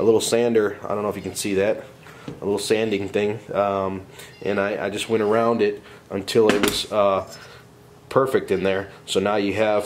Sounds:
speech

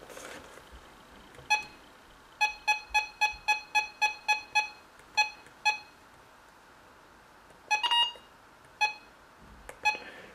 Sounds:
inside a small room

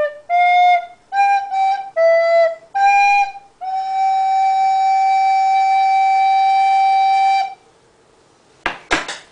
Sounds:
flute, wind instrument, music, musical instrument

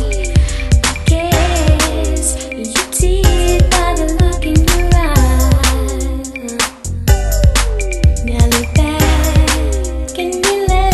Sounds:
music

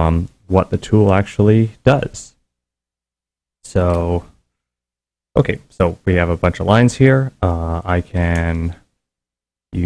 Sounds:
speech

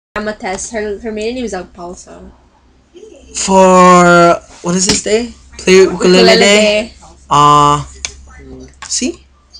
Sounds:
playing ukulele

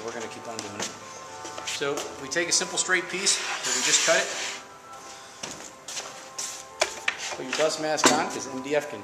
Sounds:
music, speech

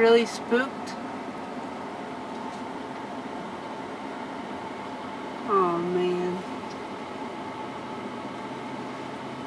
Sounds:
vehicle, car, speech

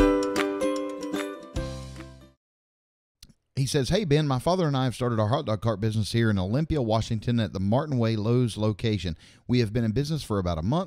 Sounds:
speech, music

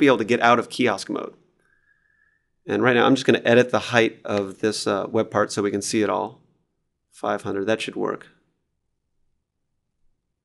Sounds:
inside a small room, speech

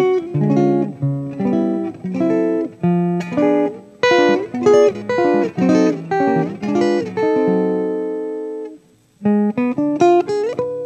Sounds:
guitar, strum, plucked string instrument, musical instrument, music, acoustic guitar

